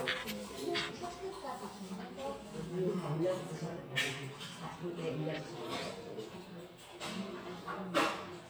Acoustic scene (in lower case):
crowded indoor space